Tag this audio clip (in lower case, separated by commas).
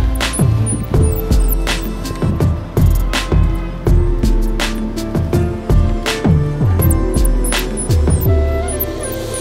mouse squeaking